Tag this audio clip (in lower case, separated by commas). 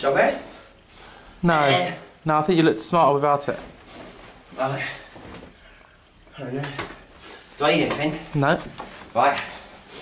speech